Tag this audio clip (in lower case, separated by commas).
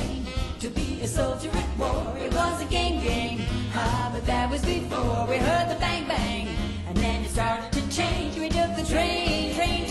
music, female singing